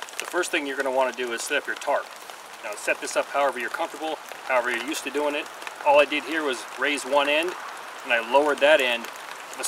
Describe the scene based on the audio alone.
A man speaks nearby as rain falls rapidly close by